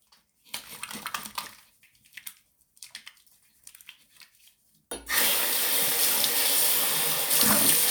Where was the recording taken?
in a restroom